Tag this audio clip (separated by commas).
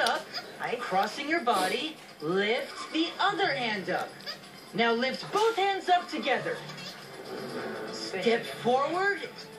Music, Speech